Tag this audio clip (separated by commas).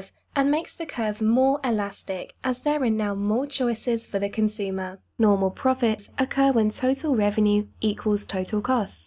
monologue